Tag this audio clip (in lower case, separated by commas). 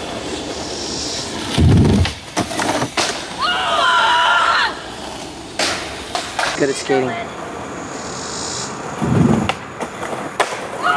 outside, urban or man-made, speech